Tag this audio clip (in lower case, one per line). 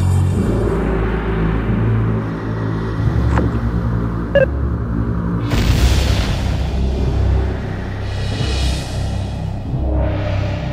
scary music
music